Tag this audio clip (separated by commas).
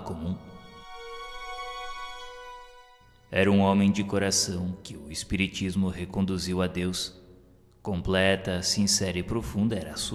Speech, Music